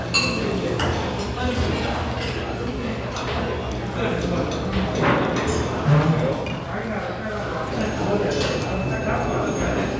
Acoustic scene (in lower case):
restaurant